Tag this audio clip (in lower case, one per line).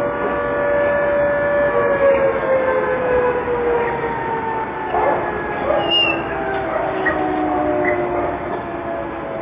civil defense siren